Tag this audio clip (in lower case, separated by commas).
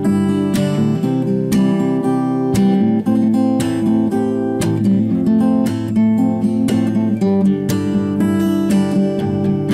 musical instrument, acoustic guitar, strum, playing acoustic guitar, plucked string instrument, music, guitar